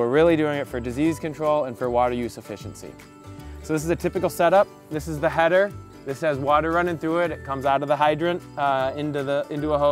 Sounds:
music, speech

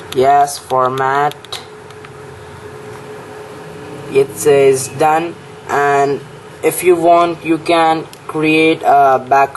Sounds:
speech

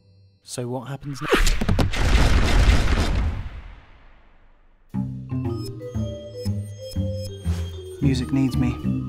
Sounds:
music, speech

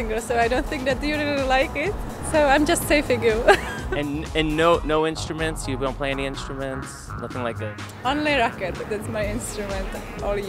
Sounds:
music, speech, punk rock

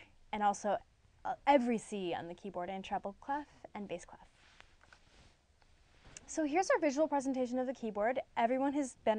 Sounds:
speech

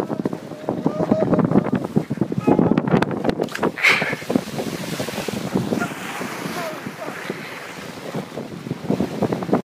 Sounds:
water vehicle, sailing ship, vehicle, speech, sailing

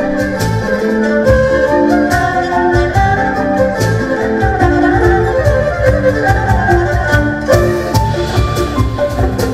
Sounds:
playing erhu

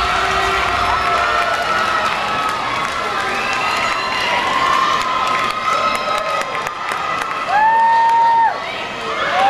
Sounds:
people cheering, cheering

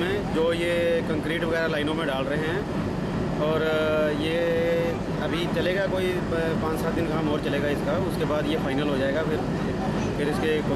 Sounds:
speech

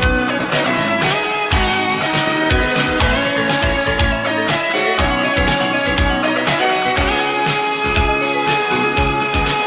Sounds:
music

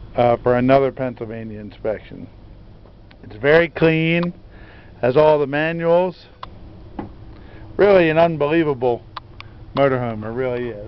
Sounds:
speech

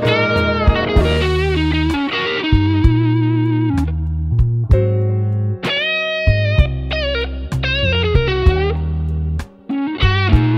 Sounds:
guitar, musical instrument, music, plucked string instrument, electric guitar

